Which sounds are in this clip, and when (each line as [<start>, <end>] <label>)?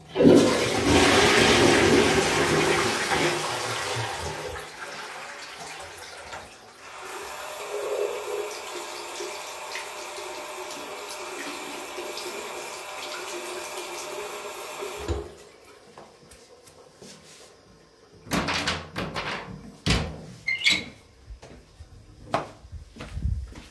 [0.00, 23.70] toilet flushing
[7.58, 15.49] running water
[18.90, 21.47] door
[21.77, 23.70] footsteps